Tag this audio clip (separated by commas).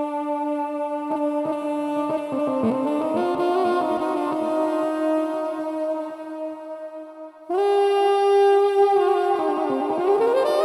woodwind instrument, Music, Musical instrument